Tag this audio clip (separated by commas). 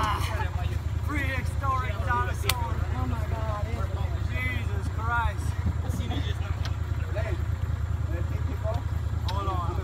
alligators